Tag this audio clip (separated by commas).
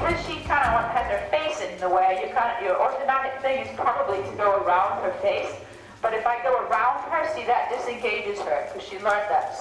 Music, Clip-clop, Speech, Animal